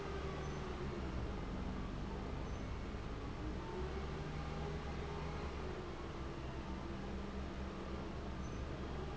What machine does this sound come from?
fan